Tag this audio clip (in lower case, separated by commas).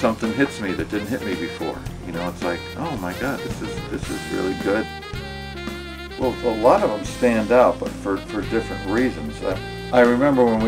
music, speech